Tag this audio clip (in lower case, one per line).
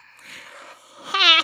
breathing
respiratory sounds